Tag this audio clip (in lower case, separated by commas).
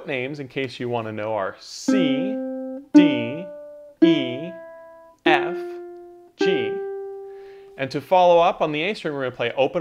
playing ukulele